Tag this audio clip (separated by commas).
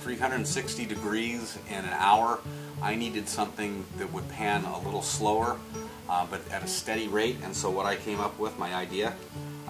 Music, Speech